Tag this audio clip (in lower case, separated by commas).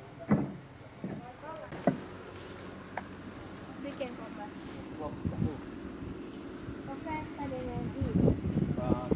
speech